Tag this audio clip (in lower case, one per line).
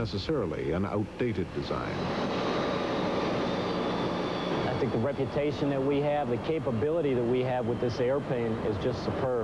vehicle
airplane